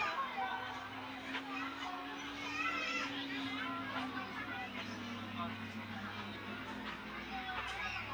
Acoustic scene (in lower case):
park